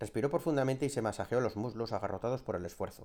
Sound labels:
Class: speech